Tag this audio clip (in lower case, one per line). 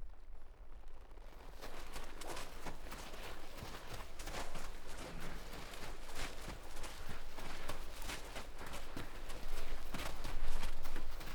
livestock
animal